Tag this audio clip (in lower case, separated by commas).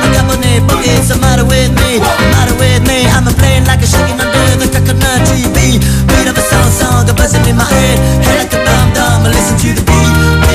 music